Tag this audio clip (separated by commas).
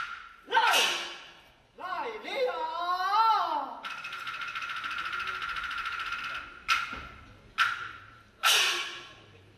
Speech